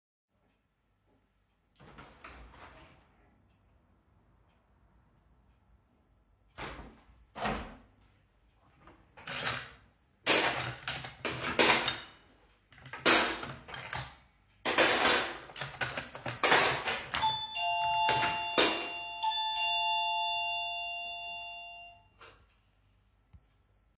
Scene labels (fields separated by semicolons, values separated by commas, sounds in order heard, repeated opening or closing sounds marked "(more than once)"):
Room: kitchen; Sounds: window (more than once), cutlery and dishes, bell ringing